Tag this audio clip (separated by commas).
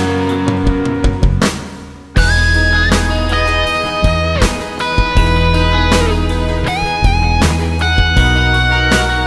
Music, Musical instrument, Plucked string instrument, Guitar